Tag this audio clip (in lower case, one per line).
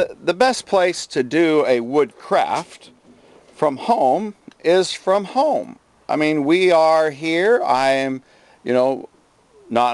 speech